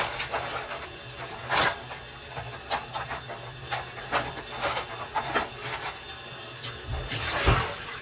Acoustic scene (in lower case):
kitchen